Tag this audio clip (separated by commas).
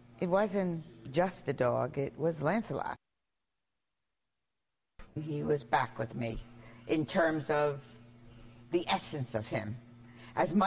Speech